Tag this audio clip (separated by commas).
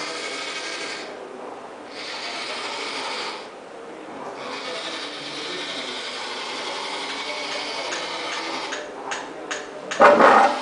Speech